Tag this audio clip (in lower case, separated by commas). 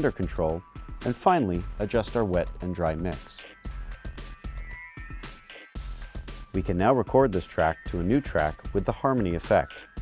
music, speech